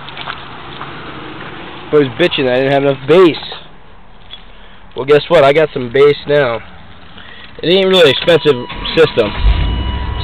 A man is talking and a beep goes off as an engine is started up